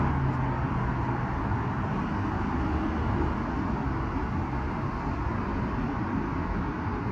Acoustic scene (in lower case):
street